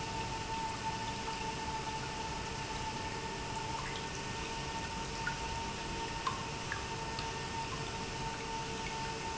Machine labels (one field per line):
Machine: pump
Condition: normal